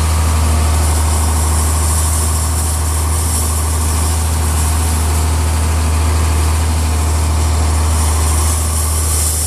Vibration and noise of a working motor